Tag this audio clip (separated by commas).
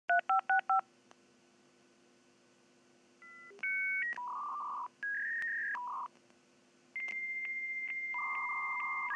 Telephone dialing